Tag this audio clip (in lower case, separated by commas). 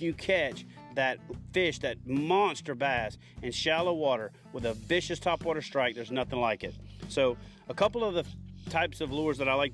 music, speech